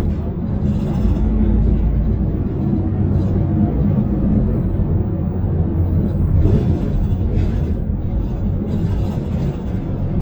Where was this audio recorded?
on a bus